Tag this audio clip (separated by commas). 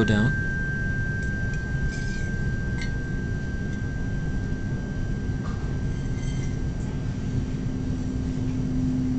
Speech